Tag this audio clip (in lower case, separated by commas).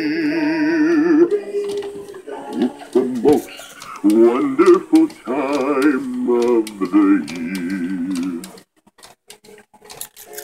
male singing, music